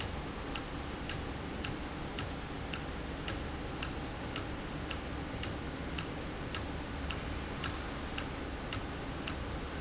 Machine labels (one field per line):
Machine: valve